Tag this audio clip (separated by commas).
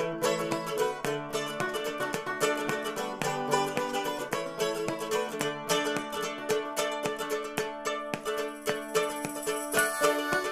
Music, Banjo